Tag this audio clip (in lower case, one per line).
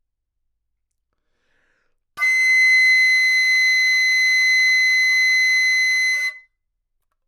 musical instrument
music
wind instrument